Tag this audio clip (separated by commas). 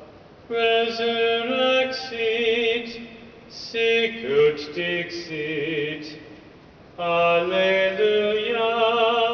Mantra